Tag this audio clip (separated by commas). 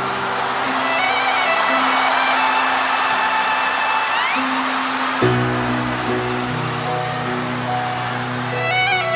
Music, Violin, Musical instrument